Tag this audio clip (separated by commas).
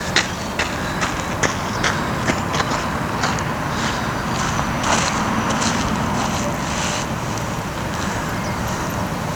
Walk